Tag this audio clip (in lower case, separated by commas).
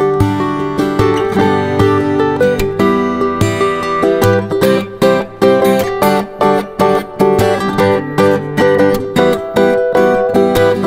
plucked string instrument, music, guitar, musical instrument, strum, electric guitar